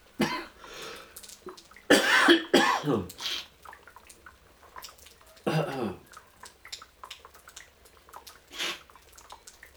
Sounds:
Respiratory sounds, Cough

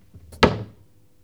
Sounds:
Cupboard open or close, Domestic sounds

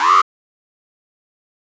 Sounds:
Alarm

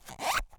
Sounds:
Zipper (clothing), Domestic sounds

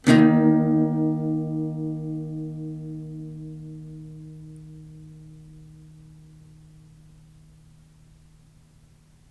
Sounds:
Acoustic guitar, Strum, Music, Plucked string instrument, Guitar, Musical instrument

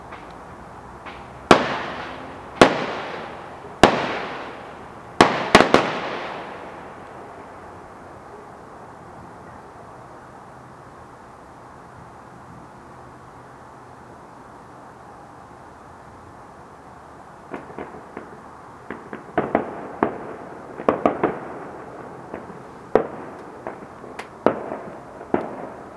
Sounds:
Explosion, Fireworks

